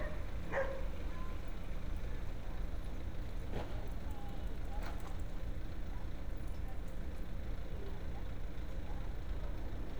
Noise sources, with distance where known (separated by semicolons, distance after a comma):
dog barking or whining